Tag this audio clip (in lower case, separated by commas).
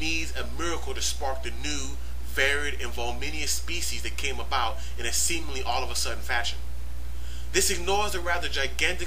speech